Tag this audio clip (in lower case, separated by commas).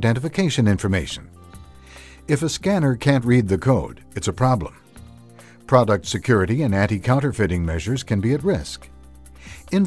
music, speech